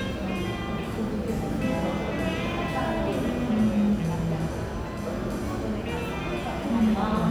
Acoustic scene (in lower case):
cafe